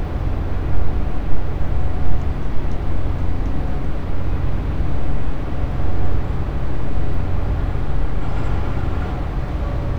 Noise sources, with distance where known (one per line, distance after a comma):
engine of unclear size